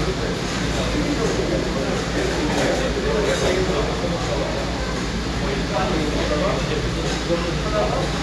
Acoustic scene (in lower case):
cafe